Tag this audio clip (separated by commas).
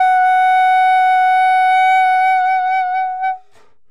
Musical instrument, Music, Wind instrument